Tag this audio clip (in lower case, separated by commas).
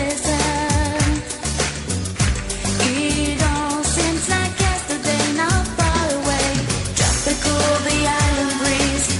music of asia, music